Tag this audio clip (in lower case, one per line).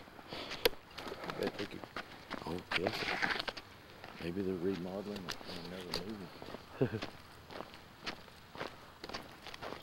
speech
walk